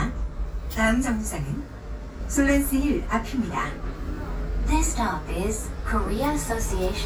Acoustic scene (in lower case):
bus